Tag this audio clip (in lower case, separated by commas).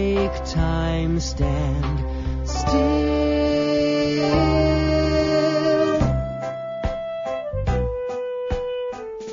inside a large room or hall, music